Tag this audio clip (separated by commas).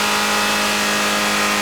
Vehicle